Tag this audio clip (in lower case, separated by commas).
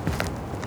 walk